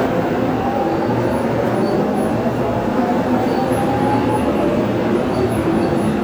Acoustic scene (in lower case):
subway station